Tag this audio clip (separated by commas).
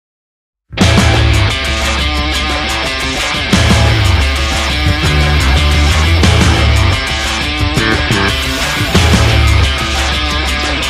Music, Punk rock, Progressive rock